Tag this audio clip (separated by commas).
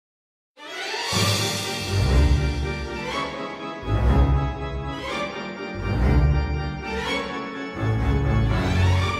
Organ